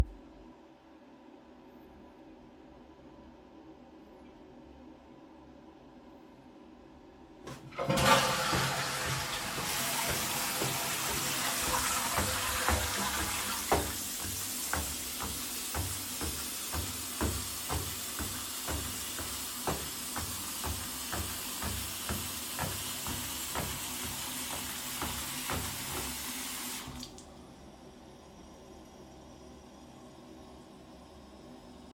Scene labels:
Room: bathroom; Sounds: toilet flushing, footsteps, running water

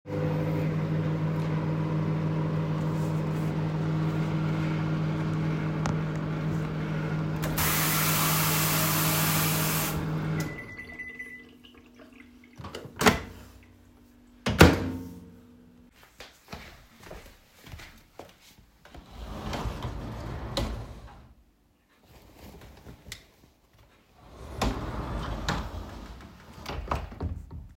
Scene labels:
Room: kitchen; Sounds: microwave, running water, door (more than once), footsteps, wardrobe or drawer (more than once)

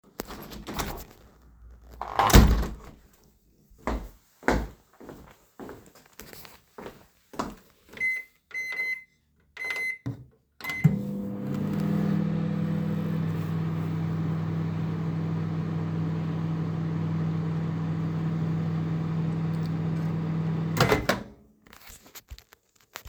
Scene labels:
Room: living room, kitchen; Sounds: wardrobe or drawer, footsteps, microwave

